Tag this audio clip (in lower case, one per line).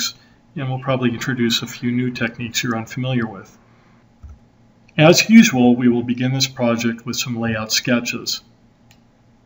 speech